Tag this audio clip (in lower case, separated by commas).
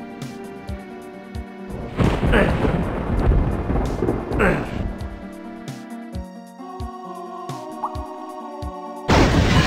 music